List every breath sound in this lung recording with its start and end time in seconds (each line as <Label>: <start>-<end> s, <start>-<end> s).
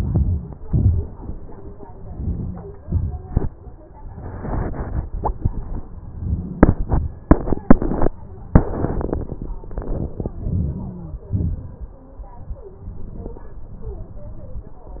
Inhalation: 0.00-0.41 s, 2.17-2.73 s, 10.48-11.05 s
Exhalation: 0.71-1.09 s, 2.81-3.31 s, 11.37-11.89 s